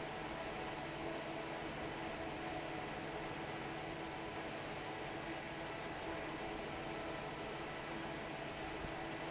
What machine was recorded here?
fan